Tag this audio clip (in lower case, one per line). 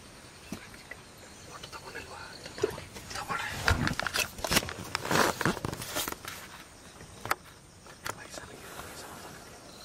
speech